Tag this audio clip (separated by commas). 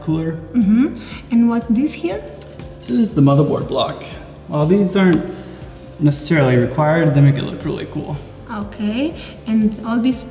Speech